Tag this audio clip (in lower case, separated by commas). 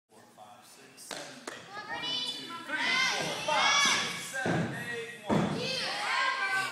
speech